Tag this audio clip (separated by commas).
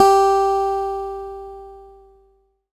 Guitar, Plucked string instrument, Music, Acoustic guitar, Musical instrument